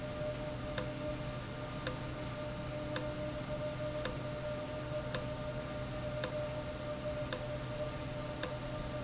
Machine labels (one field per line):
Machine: valve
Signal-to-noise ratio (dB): -6 dB